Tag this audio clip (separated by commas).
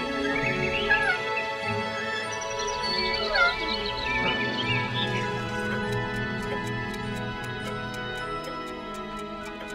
Tick-tock, Music